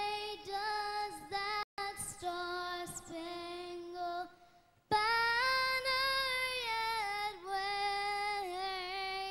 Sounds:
child singing

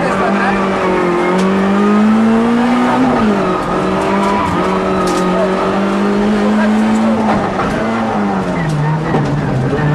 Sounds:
car, motor vehicle (road), speech, vehicle

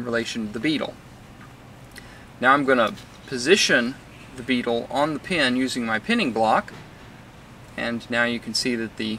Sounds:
speech

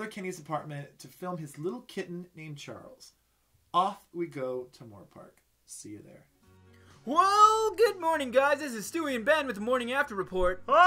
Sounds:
music, speech

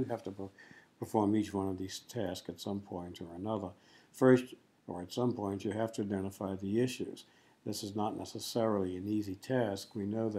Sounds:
speech

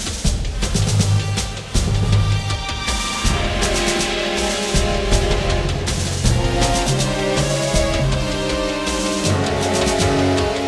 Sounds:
music

